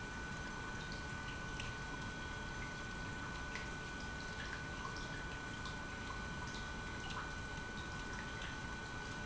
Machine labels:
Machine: pump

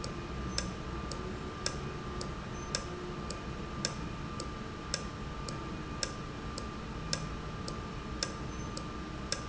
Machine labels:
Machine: valve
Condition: normal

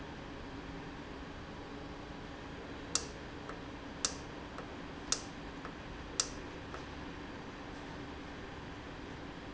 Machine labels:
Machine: valve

